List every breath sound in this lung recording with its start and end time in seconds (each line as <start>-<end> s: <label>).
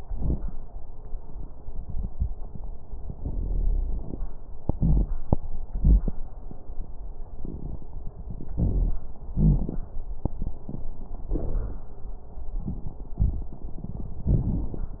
3.30-4.05 s: wheeze
4.77-5.29 s: wheeze
5.69-6.13 s: wheeze
9.37-9.71 s: wheeze